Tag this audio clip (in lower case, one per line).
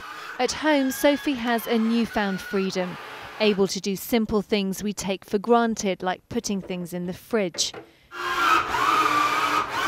blender